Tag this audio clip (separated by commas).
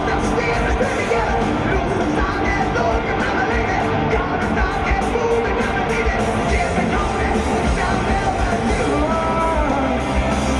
Music